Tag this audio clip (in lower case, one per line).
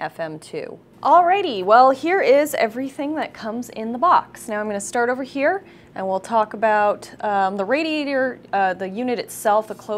speech